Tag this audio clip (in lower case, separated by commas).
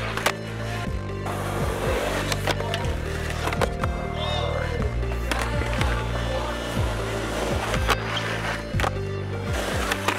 music, skateboard, speech